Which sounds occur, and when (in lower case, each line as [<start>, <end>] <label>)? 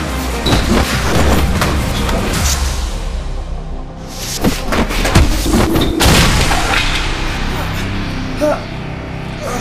[0.00, 2.99] generic impact sounds
[0.00, 9.60] music
[4.05, 6.98] generic impact sounds
[8.35, 8.59] groan